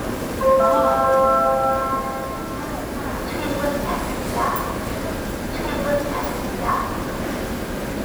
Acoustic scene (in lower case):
subway station